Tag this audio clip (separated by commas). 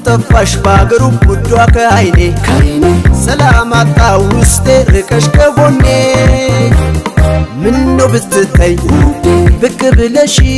Music, Folk music, Soundtrack music